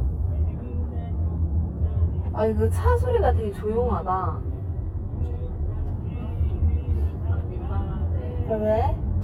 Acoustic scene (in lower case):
car